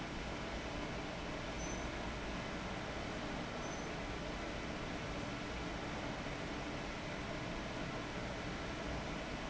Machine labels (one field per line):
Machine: fan